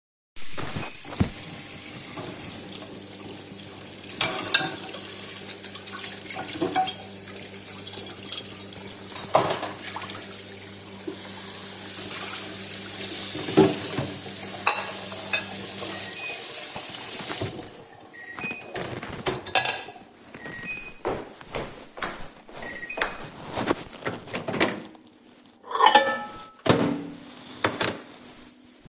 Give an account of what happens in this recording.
I run tap water while the microwave is running and dishes clink. The microwave beeps. I stop the water, walk to the microwave, take out a plate, put it on the table, and close the microwave.